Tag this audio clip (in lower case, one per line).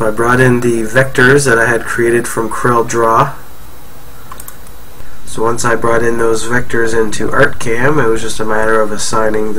speech